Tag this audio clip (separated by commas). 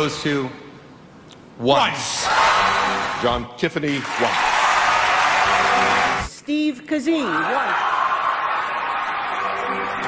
Speech